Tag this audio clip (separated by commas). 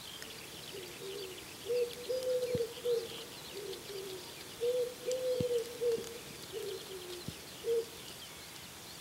Coo, Pigeon, Bird, dove cooing